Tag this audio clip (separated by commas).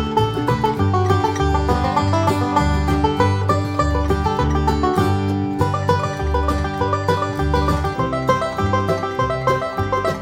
Country, Music, Bluegrass